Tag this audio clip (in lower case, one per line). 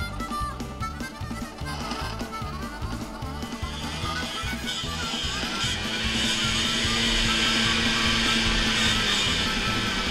driving snowmobile